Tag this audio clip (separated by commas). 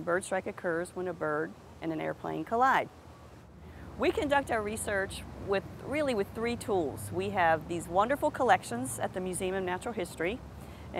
Speech